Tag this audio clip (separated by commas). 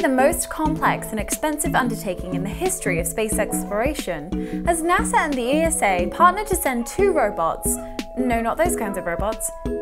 Speech, Music